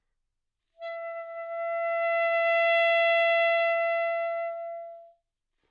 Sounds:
musical instrument, music, wind instrument

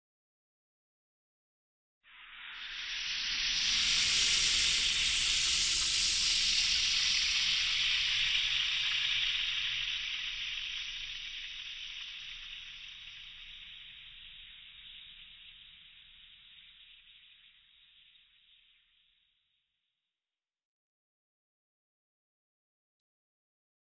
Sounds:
domestic sounds, frying (food)

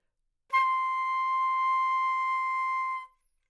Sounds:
music, wind instrument, musical instrument

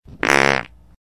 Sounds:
fart

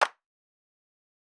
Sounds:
hands, clapping

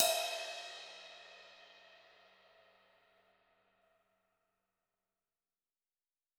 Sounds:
musical instrument, percussion, crash cymbal, music, cymbal

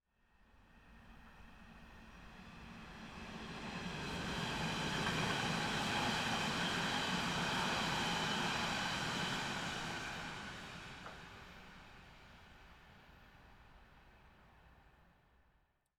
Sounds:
train, rail transport, vehicle

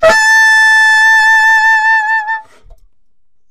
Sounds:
wind instrument, music, musical instrument

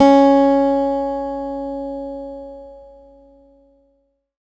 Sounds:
plucked string instrument, acoustic guitar, guitar, musical instrument, music

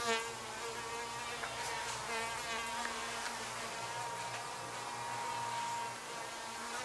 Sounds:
buzz, animal, insect, wild animals

